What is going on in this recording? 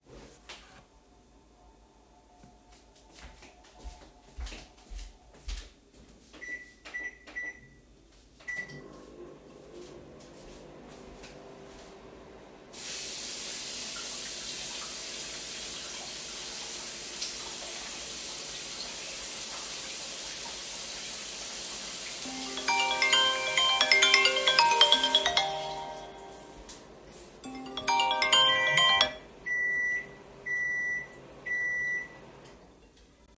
I was running the microwave and rinsing the cutlery suddenly my phone rang